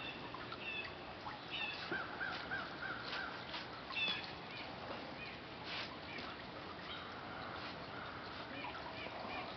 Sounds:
animal, domestic animals, dog

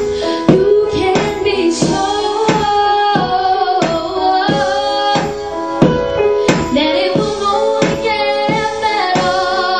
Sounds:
music, female singing

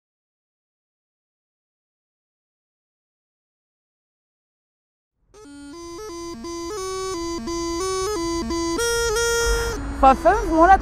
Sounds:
playing bagpipes

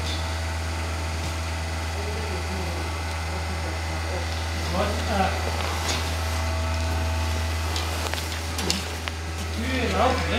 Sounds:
speech

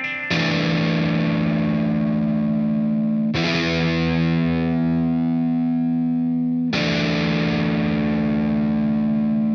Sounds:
acoustic guitar, musical instrument, electric guitar, guitar, music

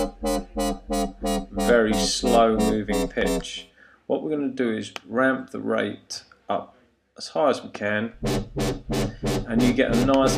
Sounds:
music, electronic music, synthesizer, speech

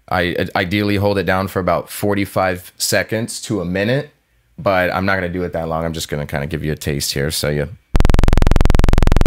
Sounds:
synthesizer, musical instrument, speech, music

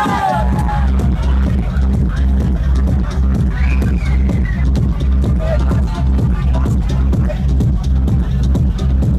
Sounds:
music, exciting music

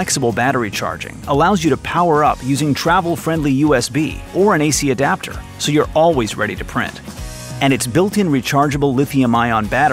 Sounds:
speech, music

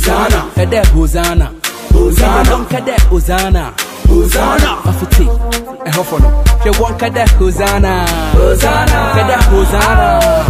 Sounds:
music, singing, reggae

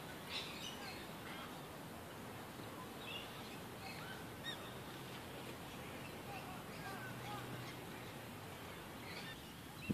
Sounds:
bird, environmental noise

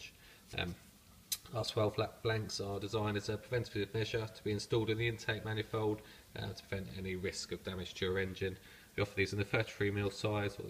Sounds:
speech

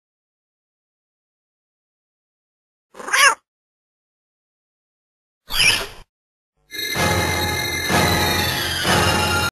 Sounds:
meow, music

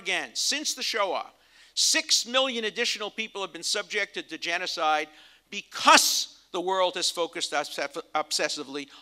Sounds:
speech, man speaking

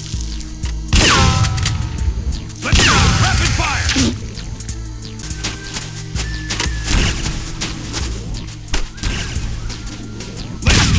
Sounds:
speech, music

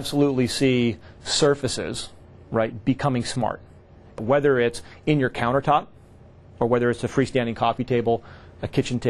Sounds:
speech

